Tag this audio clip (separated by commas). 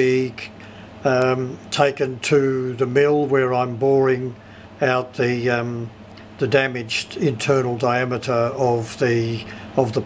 Speech